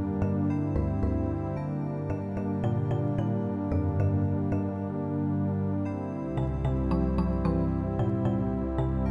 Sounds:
Music, New-age music

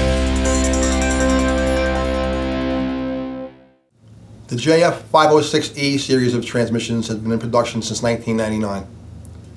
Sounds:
Music, Speech

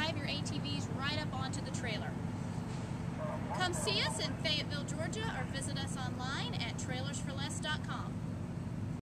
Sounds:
Speech

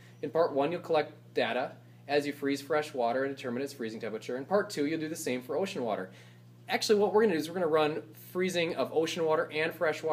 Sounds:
Speech

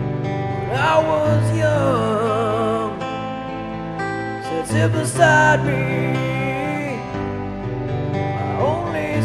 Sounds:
Music, Male singing

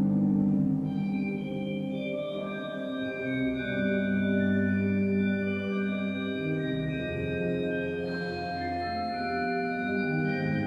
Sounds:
Music, Organ, Musical instrument

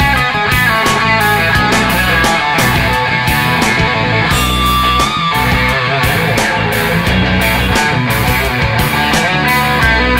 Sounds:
Progressive rock, Music

